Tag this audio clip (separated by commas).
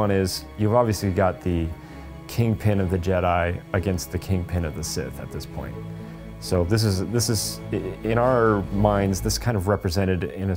Music, Speech